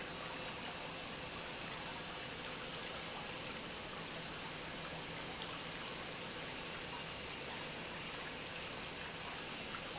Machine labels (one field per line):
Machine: pump